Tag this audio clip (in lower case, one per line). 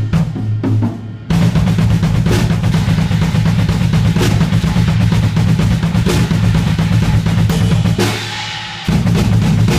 playing bass drum